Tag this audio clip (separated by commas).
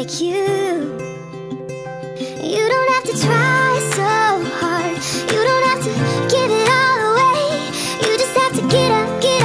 Tender music, Music